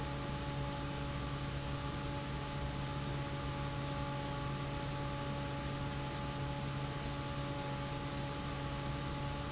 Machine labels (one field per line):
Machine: fan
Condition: normal